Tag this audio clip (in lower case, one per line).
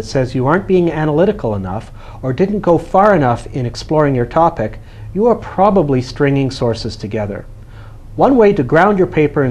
speech